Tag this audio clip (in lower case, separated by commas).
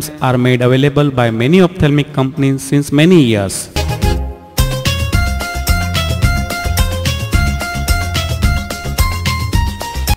speech, music